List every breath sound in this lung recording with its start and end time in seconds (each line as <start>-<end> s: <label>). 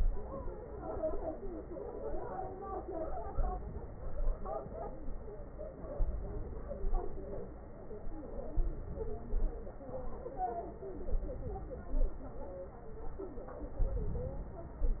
3.29-4.03 s: inhalation
4.03-4.71 s: exhalation
5.95-6.80 s: inhalation
6.80-7.48 s: exhalation
8.55-9.27 s: inhalation
9.27-9.88 s: exhalation
11.10-11.80 s: inhalation
11.80-12.48 s: exhalation
13.72-14.40 s: inhalation
14.40-15.00 s: exhalation